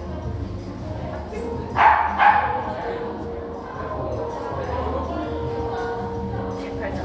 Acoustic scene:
crowded indoor space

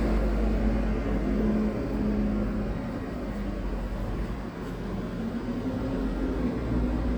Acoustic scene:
residential area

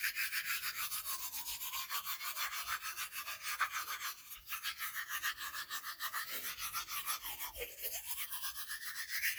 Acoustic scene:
restroom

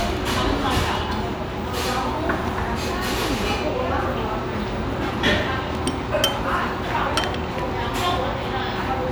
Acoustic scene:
restaurant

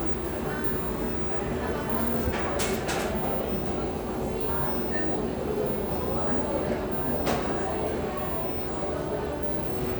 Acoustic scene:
cafe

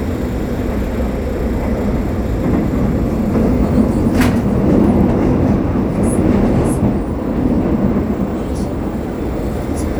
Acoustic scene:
subway train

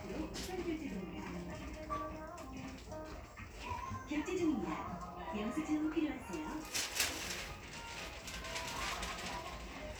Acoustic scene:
crowded indoor space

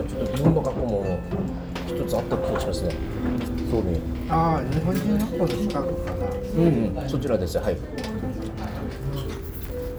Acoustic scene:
restaurant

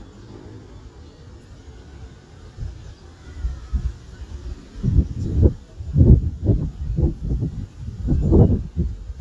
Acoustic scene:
residential area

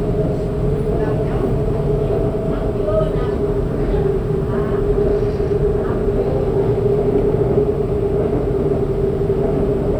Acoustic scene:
subway train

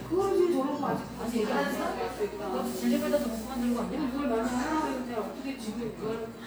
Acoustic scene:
cafe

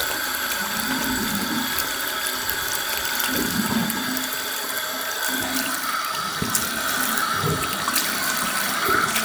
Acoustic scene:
restroom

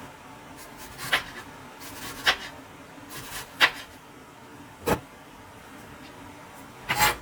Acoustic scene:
kitchen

